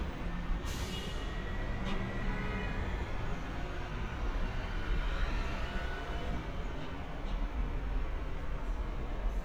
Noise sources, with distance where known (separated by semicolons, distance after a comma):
car horn